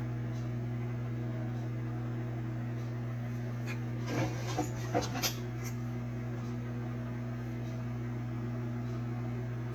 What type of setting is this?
kitchen